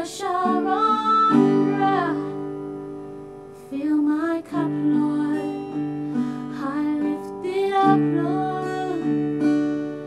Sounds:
music

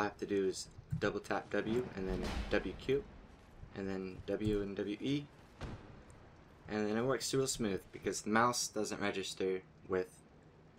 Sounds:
speech

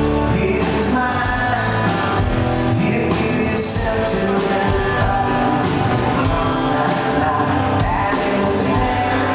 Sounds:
music

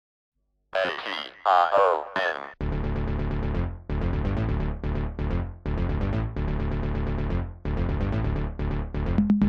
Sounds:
electronic music, speech, music, techno

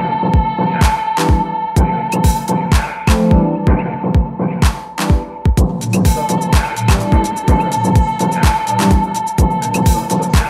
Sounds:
music, electronica, sampler

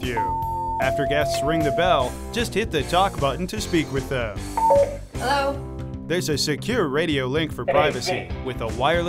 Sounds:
doorbell, speech, music

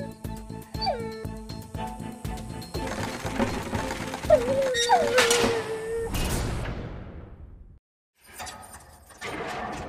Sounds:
bow-wow, music

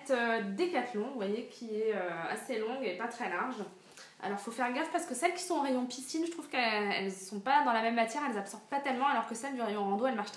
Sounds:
speech

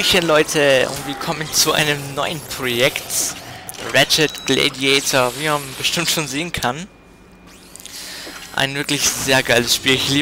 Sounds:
speech

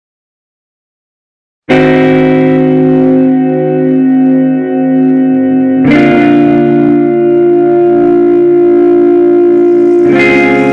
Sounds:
music, reverberation

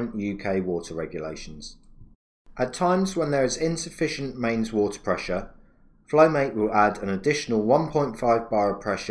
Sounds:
speech

